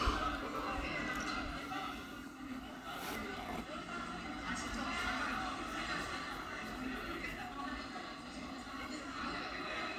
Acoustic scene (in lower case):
cafe